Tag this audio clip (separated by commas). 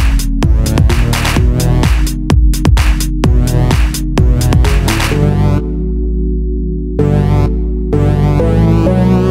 Music, Electronic music, House music, Electronica